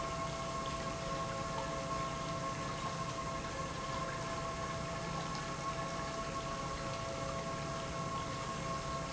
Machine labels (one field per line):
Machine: pump